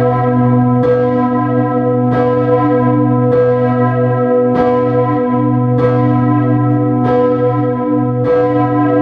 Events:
[0.00, 9.01] church bell

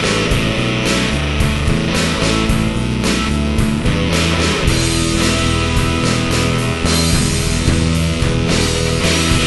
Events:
[0.00, 9.45] music

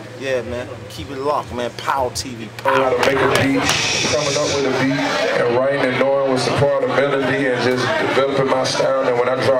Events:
[0.00, 9.55] mechanisms
[0.19, 0.73] man speaking
[0.88, 3.73] man speaking
[2.58, 9.55] crowd
[3.59, 4.66] music
[4.02, 9.55] man speaking

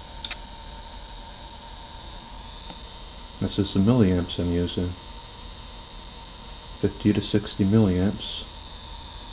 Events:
[0.00, 9.32] mechanisms
[6.98, 8.41] male speech

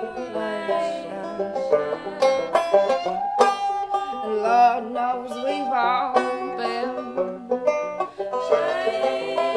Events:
[0.00, 9.55] music
[0.01, 3.11] female singing
[4.08, 7.39] female singing
[8.12, 9.55] female singing

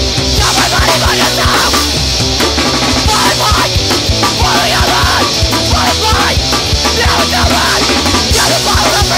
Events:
[0.00, 9.15] music
[0.35, 1.86] shout
[0.38, 1.87] male speech
[3.06, 3.65] shout
[3.08, 3.66] male speech
[4.21, 5.27] male speech
[4.21, 5.27] shout
[5.65, 6.34] male speech
[5.68, 6.34] shout
[6.92, 7.73] male speech
[6.94, 7.74] shout
[8.28, 9.15] shout
[8.29, 9.15] male speech

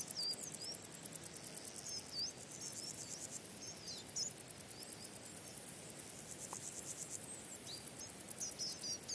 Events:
[0.00, 3.33] bird
[0.00, 9.14] wind
[0.09, 0.70] chirp
[1.84, 2.28] chirp
[2.50, 3.12] chirp
[3.58, 3.96] chirp
[4.09, 4.24] chirp
[4.71, 5.08] chirp
[5.26, 5.52] chirp
[6.17, 7.14] bird
[7.59, 8.13] chirp
[8.36, 9.14] chirp

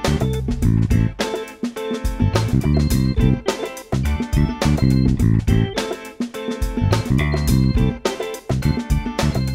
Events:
[0.01, 9.54] music

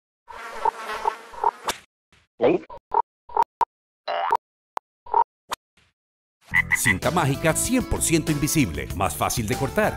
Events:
[0.09, 1.46] buzz
[3.37, 3.77] boing
[5.73, 6.16] sound effect
[6.12, 6.87] croak
[6.31, 9.95] music
[6.64, 9.86] male speech

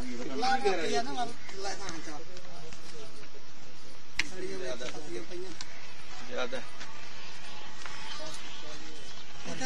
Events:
[0.00, 1.32] male speech
[0.00, 9.65] conversation
[0.00, 9.65] wind
[1.41, 1.47] generic impact sounds
[1.47, 2.31] male speech
[1.78, 1.93] generic impact sounds
[2.34, 2.42] generic impact sounds
[2.50, 3.94] male speech
[2.64, 2.77] generic impact sounds
[4.13, 4.26] generic impact sounds
[4.19, 5.52] male speech
[4.77, 4.95] generic impact sounds
[5.56, 5.67] generic impact sounds
[5.66, 9.65] music
[6.24, 6.68] male speech
[6.75, 6.86] generic impact sounds

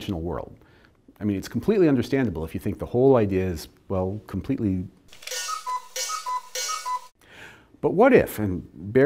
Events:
[5.04, 7.11] alarm clock
[7.18, 7.70] breathing

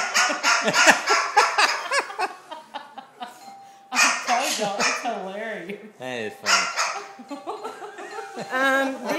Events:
[0.00, 1.96] yip
[0.00, 3.45] laughter
[0.00, 9.15] background noise
[3.25, 3.85] doorbell
[3.54, 3.82] breathing
[3.81, 5.94] woman speaking
[3.84, 4.51] yip
[3.85, 9.15] conversation
[4.33, 4.66] scrape
[4.70, 5.09] yip
[5.94, 6.64] male speech
[6.39, 7.06] yip
[6.92, 9.15] laughter
[6.93, 7.75] doorbell
[8.03, 8.65] doorbell
[8.27, 9.15] woman speaking

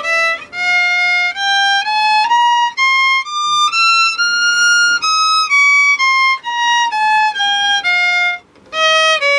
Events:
[0.00, 9.35] background noise
[0.01, 8.36] music
[8.67, 9.35] music

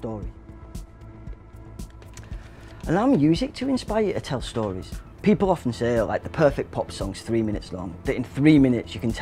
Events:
[0.00, 0.28] male speech
[0.00, 9.21] music
[1.96, 2.21] generic impact sounds
[2.02, 2.67] breathing
[2.83, 4.98] male speech
[5.20, 7.87] male speech
[8.04, 9.21] male speech

